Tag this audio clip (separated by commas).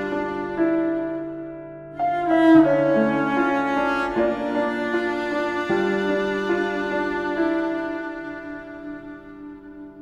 Music